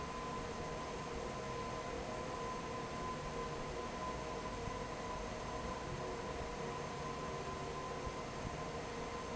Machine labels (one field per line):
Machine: fan